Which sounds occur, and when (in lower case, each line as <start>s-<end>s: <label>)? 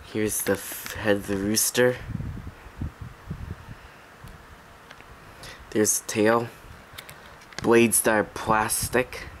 0.0s-9.4s: mechanisms
0.1s-2.0s: man speaking
2.0s-2.5s: wind noise (microphone)
2.7s-3.9s: wind noise (microphone)
4.1s-4.7s: wind noise (microphone)
4.8s-5.0s: generic impact sounds
5.1s-5.8s: breathing
5.8s-6.5s: man speaking
6.9s-7.2s: generic impact sounds
7.4s-7.7s: generic impact sounds
7.6s-9.3s: man speaking
8.7s-9.4s: wind noise (microphone)